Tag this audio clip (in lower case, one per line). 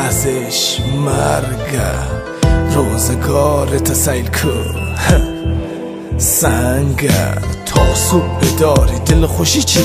music
rhythm and blues